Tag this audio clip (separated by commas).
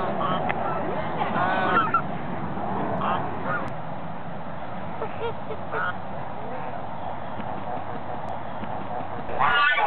Domestic animals, Animal, Speech